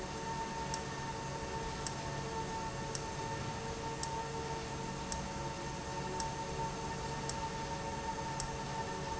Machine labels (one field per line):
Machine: valve